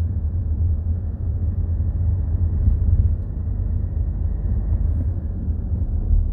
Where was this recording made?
in a car